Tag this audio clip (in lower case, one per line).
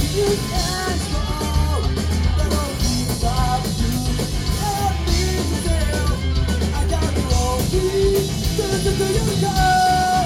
independent music
music